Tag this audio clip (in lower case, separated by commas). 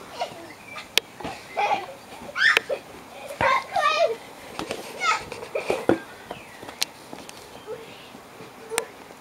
speech